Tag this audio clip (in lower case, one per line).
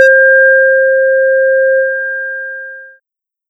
alarm